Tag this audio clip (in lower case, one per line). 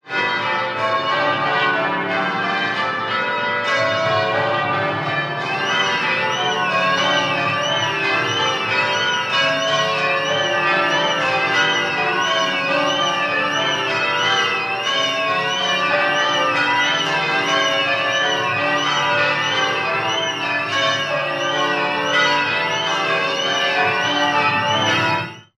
bell
motor vehicle (road)
alarm
church bell
vehicle
car